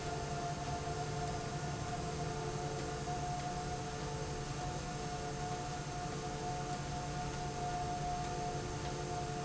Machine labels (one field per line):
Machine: slide rail